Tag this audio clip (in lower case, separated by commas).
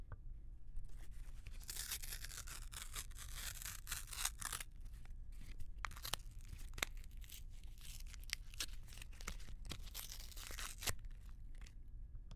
tearing